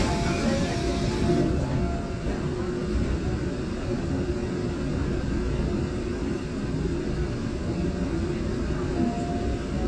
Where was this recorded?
on a subway train